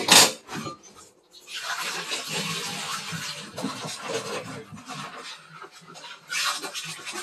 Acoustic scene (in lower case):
kitchen